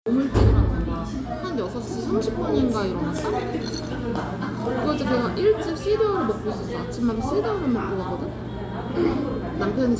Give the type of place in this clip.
cafe